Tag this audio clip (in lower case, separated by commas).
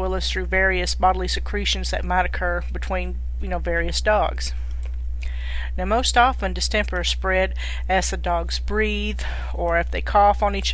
speech